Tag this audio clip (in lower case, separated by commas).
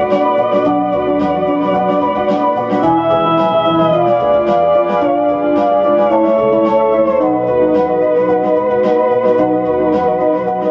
organ